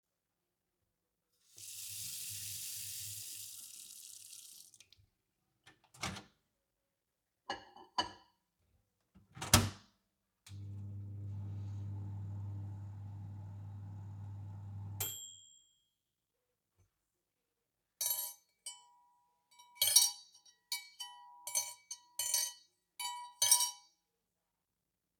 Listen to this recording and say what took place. rinsed off cutlery in the sink, put a dish in the microwave for a quick warming up, then put away the dirty cutlery together in a cup.